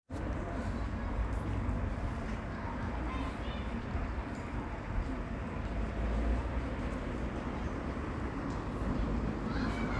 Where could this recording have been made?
in a residential area